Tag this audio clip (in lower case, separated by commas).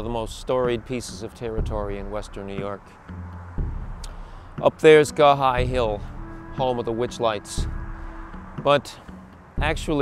music, speech